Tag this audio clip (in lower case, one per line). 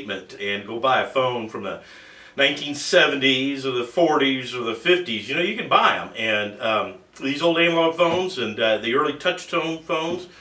speech